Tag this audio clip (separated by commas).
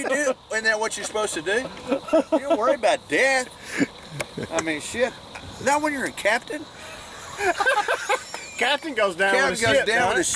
outside, rural or natural, Speech